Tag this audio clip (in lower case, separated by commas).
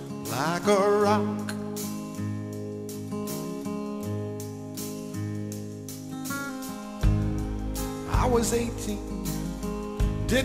music